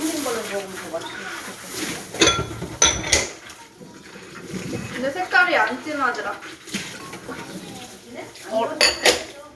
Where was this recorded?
in a kitchen